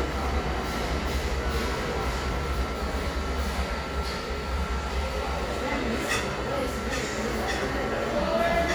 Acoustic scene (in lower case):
crowded indoor space